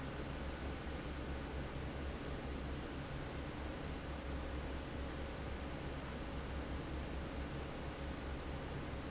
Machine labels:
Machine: fan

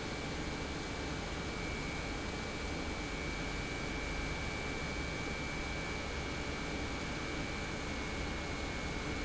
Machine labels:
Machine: pump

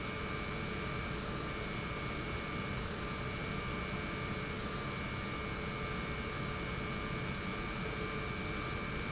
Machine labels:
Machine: pump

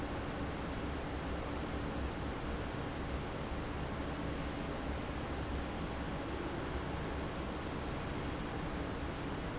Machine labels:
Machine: fan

